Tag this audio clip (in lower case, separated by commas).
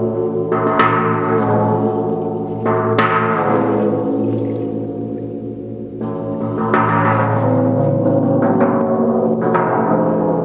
gong